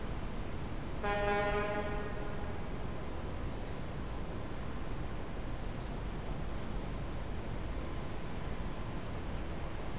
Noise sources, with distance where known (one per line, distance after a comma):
car horn, near